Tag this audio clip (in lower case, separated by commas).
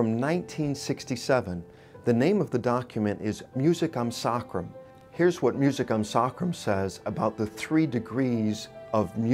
sad music, speech, music